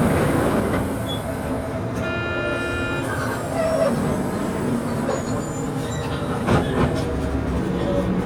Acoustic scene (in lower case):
bus